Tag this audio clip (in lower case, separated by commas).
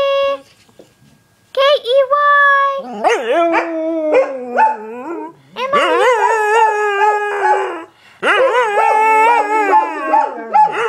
speech, dog, animal, domestic animals